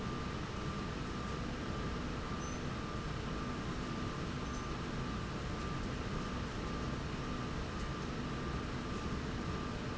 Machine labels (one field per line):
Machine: slide rail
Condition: normal